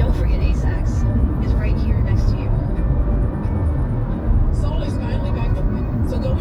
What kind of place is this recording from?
car